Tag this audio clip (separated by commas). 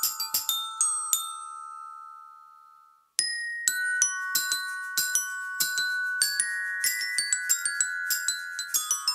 playing glockenspiel